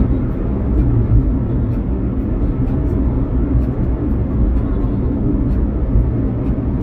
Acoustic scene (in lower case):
car